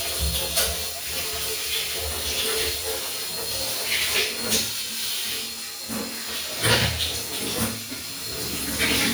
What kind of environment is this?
restroom